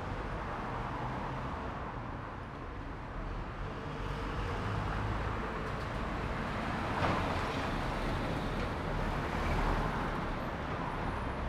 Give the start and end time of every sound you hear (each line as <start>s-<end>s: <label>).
0.0s-11.5s: car
0.0s-11.5s: car wheels rolling
3.2s-6.4s: car engine accelerating
5.5s-10.4s: truck wheels rolling
5.5s-11.5s: truck
9.1s-10.3s: car engine accelerating
10.4s-11.5s: truck brakes